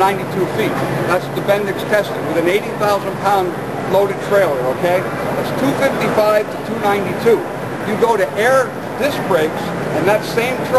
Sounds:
speech

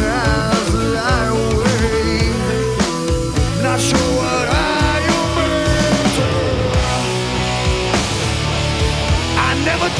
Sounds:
music

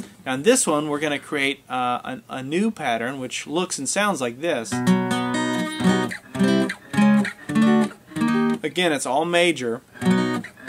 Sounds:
strum, music, speech, acoustic guitar, musical instrument, guitar, plucked string instrument

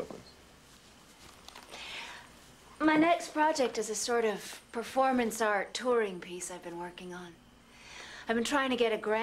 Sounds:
speech

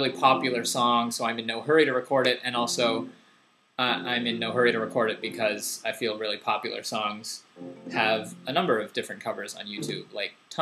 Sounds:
speech, music

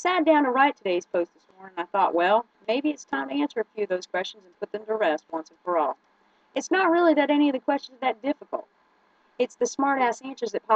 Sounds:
speech

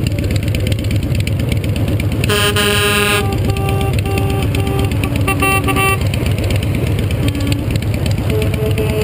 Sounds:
truck, vehicle

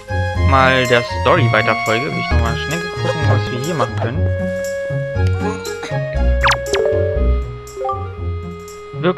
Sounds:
music, speech

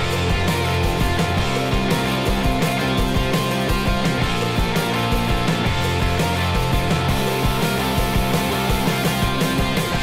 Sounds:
music

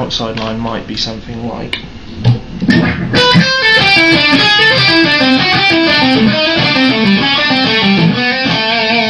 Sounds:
speech, music

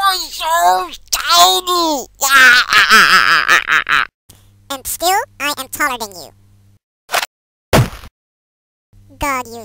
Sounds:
inside a small room, speech

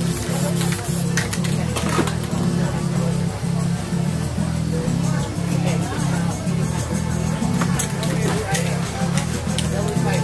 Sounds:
music, spray, speech

